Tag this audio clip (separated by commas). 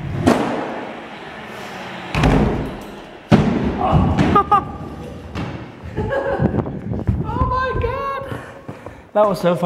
thud, Speech